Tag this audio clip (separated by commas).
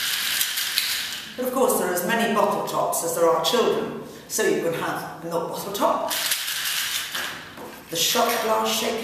Speech